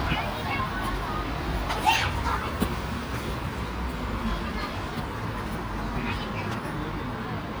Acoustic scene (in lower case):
park